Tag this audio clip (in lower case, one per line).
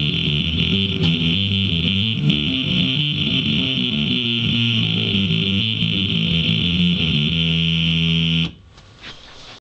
music